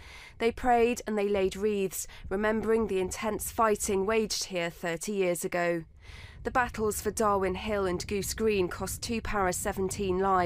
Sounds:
Speech

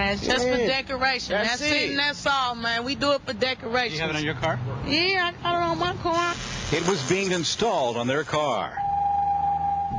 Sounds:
honking, Speech

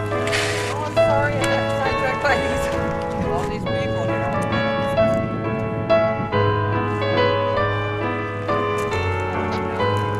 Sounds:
Music, Speech

